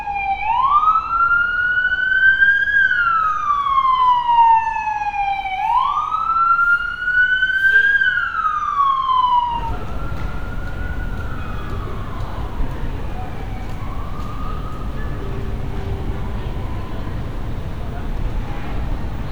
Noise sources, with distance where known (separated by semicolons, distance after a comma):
siren